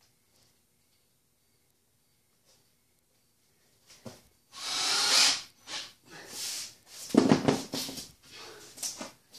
Drilling noise followed by a thump and someone breathing in deeply